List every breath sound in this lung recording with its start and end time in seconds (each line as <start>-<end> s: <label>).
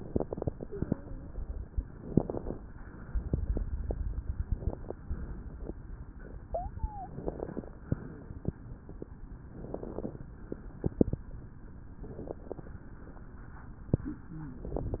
0.91-1.46 s: wheeze
1.96-2.58 s: inhalation
1.96-2.58 s: crackles
6.43-7.14 s: wheeze
7.13-7.76 s: inhalation
7.13-7.76 s: crackles
9.56-10.27 s: exhalation
9.56-10.27 s: crackles
10.68-11.31 s: inhalation
10.68-11.31 s: crackles
12.05-12.75 s: exhalation
12.05-12.75 s: crackles
14.00-14.71 s: wheeze